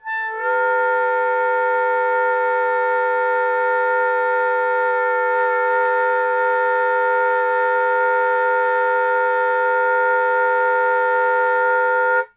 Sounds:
Musical instrument, Music, Wind instrument

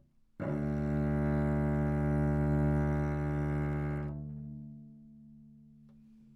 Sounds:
Music, Bowed string instrument, Musical instrument

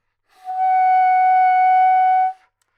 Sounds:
Wind instrument, Music, Musical instrument

